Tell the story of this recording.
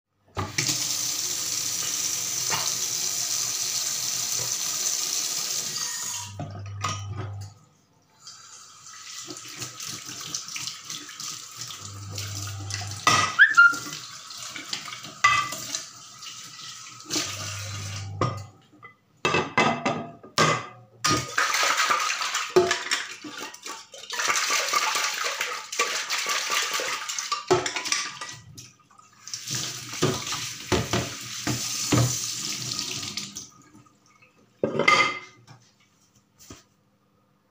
I turned on tap water, started washing dishes manually, turn off water.